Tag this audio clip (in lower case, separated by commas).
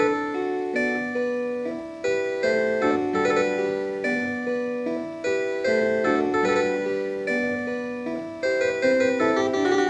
harpsichord, music